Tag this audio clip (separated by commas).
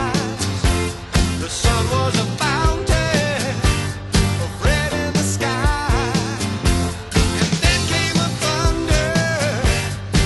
Music